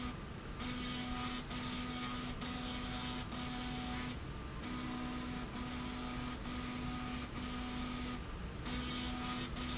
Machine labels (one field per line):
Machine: slide rail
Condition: abnormal